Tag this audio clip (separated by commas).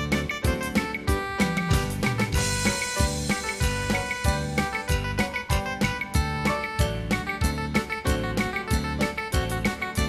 Music